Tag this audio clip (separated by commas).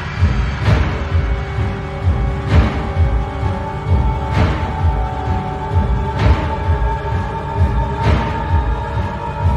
Music, Scary music